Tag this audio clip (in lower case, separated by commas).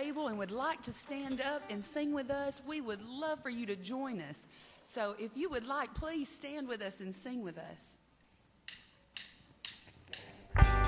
speech, music